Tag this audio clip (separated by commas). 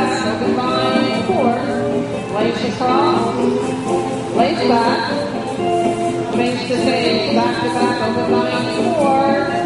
Music, Musical instrument, Speech